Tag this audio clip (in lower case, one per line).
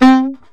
music
wind instrument
musical instrument